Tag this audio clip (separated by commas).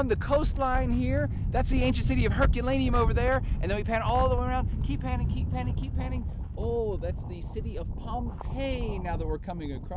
Speech